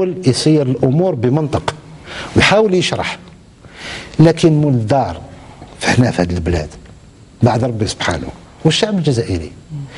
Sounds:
Speech

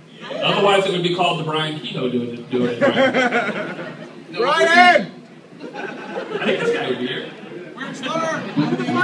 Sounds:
Speech

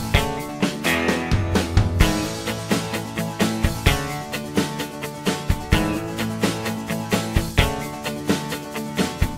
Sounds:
Music

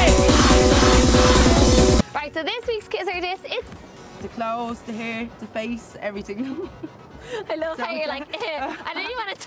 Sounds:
Music, Speech

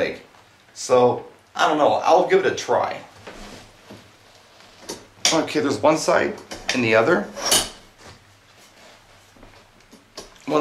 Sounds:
Speech, inside a small room

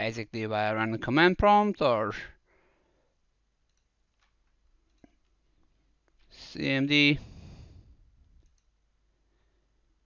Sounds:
inside a small room, Speech

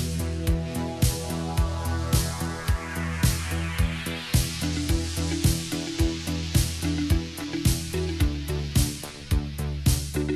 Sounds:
Pop music, Jazz, Dance music, Disco, Music

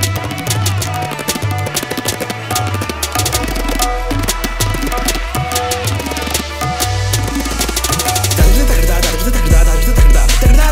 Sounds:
playing tabla

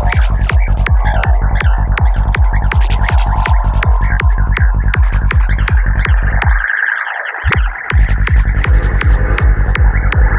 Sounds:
Electronic music, Music

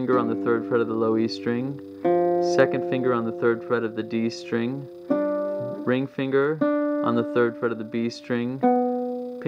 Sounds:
Musical instrument, Acoustic guitar, Speech, Strum, Music, Plucked string instrument, Guitar

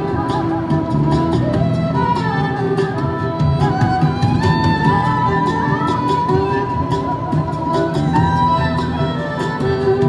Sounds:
Music

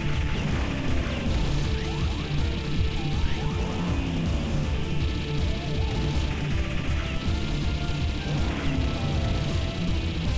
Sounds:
Music

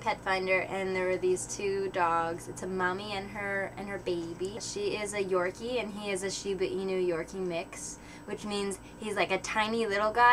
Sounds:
Speech

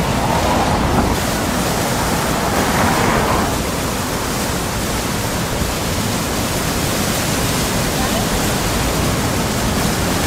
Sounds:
outside, urban or man-made

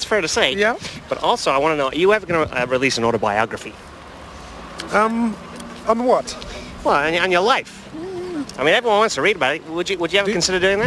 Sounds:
Speech, outside, urban or man-made

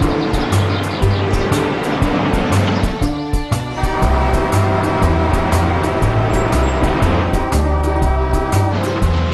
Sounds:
Vehicle

